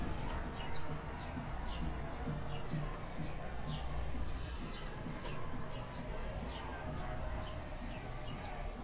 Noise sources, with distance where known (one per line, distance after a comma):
music from a fixed source, far
large crowd, far